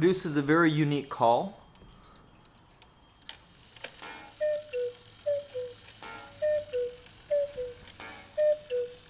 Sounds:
Speech

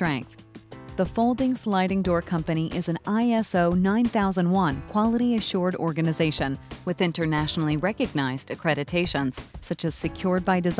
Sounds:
Music, Speech

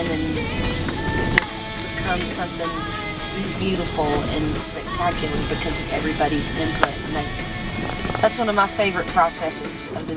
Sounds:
Speech, Music

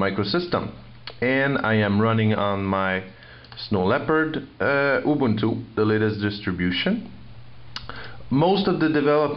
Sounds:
Speech

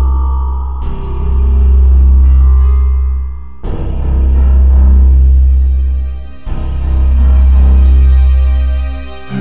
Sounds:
Music, Scary music, Soundtrack music

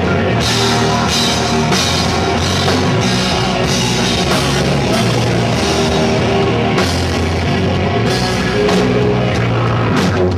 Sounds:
Musical instrument, Percussion, Music, Rock music, Drum kit, Drum

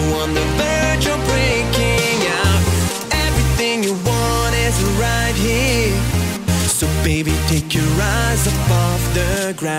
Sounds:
Soundtrack music, Music

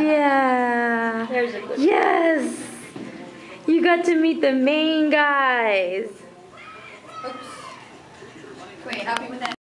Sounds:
Speech

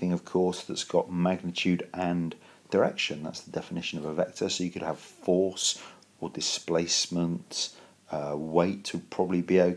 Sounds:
Speech

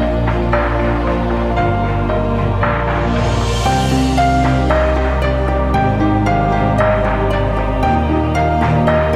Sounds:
Music

